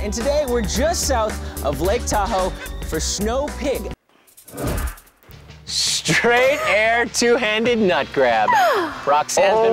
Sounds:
speech, music

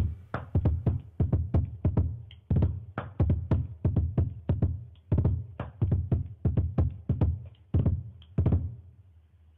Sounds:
musical instrument, music

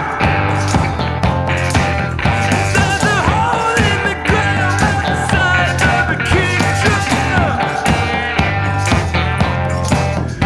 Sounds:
music

